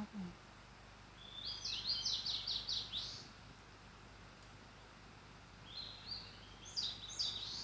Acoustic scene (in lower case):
park